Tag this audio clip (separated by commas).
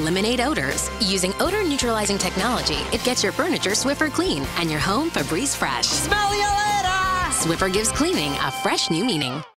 Music, Speech